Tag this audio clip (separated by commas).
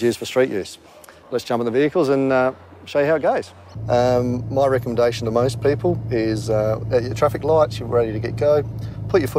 Speech